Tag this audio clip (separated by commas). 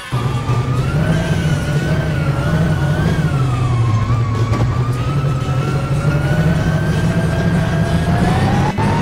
Music